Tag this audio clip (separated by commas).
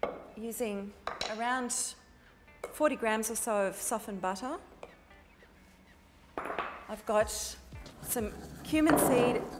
Speech, Music